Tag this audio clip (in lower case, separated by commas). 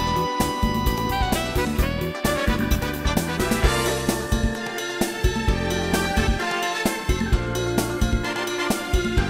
music, exciting music